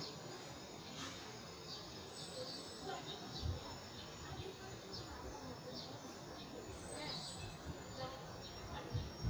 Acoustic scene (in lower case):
residential area